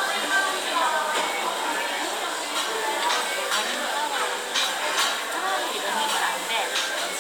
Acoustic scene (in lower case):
restaurant